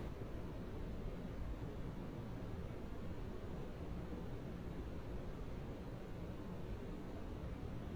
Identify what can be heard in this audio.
background noise